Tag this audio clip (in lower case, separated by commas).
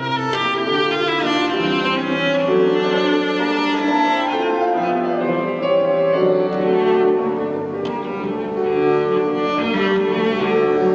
cello, bowed string instrument, playing cello